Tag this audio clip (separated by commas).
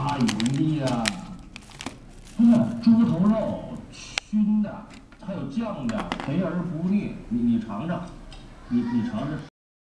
Speech